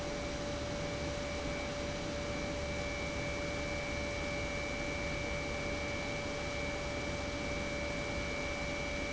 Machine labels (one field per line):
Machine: pump